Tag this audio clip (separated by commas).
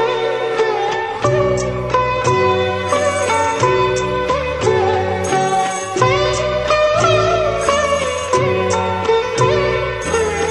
playing sitar